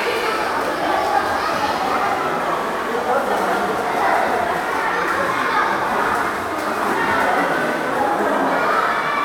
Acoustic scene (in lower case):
crowded indoor space